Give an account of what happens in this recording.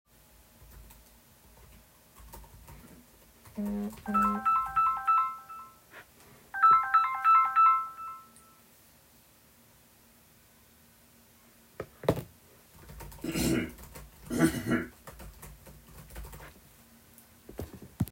I was typing on the computer keyboard. When the phone rang, I paused and checked it briefly. I continued typing afterward while someone in the background cleared their throat.